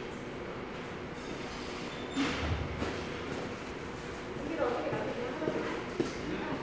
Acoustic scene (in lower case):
subway station